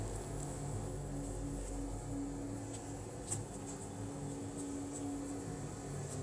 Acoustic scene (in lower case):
elevator